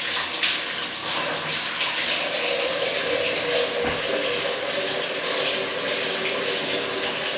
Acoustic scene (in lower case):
restroom